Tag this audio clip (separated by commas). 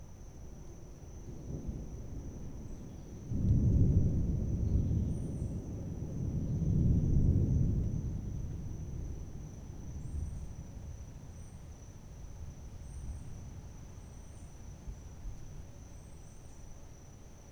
Thunderstorm, Thunder